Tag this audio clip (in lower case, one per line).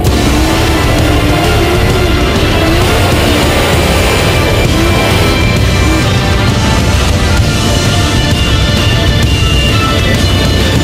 motor vehicle (road)
vehicle
music
car